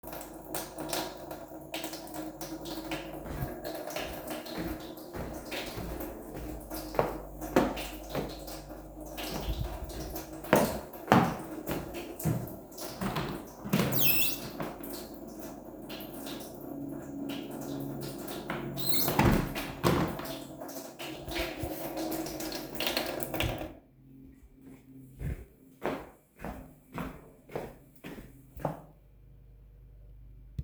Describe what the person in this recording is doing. Water was running. A person started walking in the kitchen towards a window. Person opened the window, but then closed it in a few seconds. Then person went to the tap to turn it off. The person walks away.